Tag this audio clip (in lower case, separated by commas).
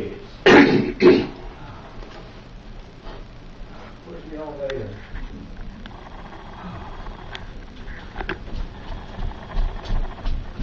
speech, footsteps